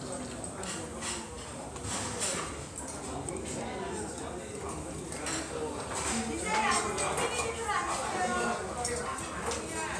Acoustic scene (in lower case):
restaurant